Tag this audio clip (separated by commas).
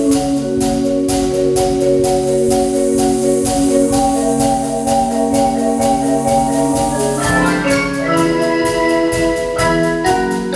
Wood block, Music, Percussion